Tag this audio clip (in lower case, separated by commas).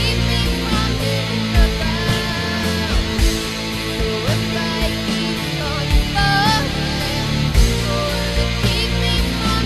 heavy metal, music